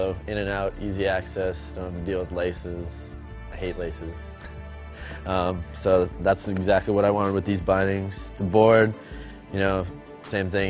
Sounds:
Music, Speech

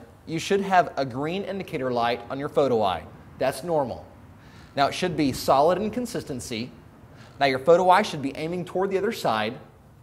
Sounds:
Speech

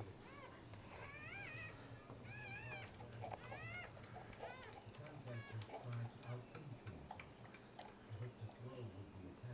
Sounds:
Speech

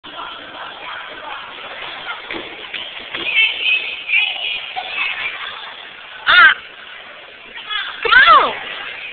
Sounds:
inside a public space, Speech

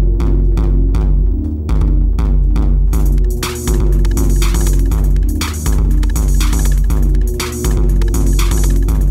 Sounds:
Music

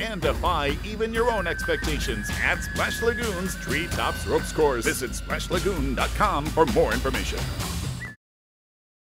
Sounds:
Music, Speech

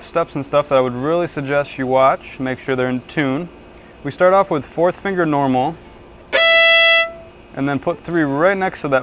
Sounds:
Speech, Musical instrument, Violin, Music

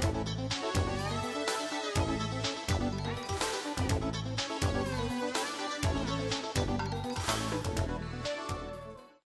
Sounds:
Music

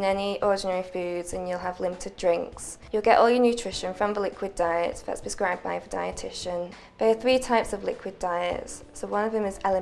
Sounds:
Speech, Music

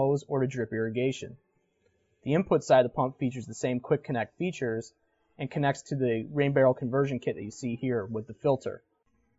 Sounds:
Speech

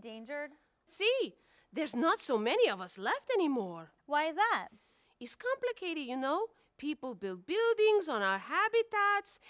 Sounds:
Speech

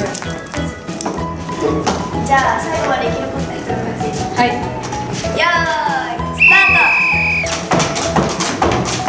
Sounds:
rope skipping

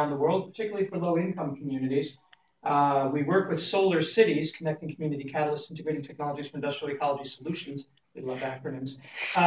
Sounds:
Speech

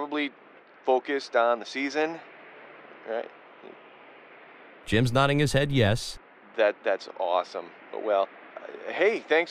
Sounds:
Speech, Radio

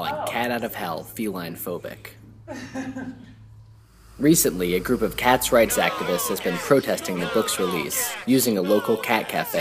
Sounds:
Speech

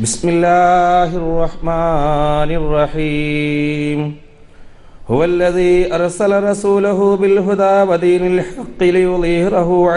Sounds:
Male speech, monologue, Speech

